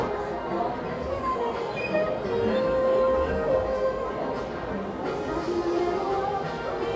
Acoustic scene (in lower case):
crowded indoor space